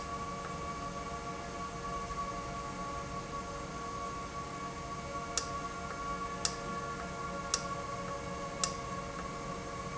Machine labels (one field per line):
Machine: valve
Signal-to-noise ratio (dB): -6 dB